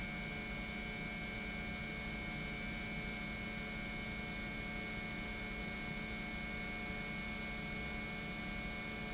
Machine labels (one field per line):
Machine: pump